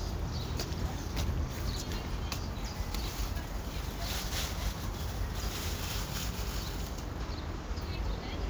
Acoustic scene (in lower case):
residential area